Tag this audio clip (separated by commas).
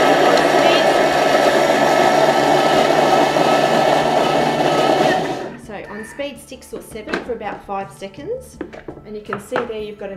Music, inside a small room, Speech, Blender